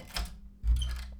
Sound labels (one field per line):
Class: door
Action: opening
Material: wooden